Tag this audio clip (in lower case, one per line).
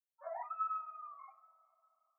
animal